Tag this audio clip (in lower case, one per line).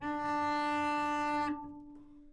musical instrument
music
bowed string instrument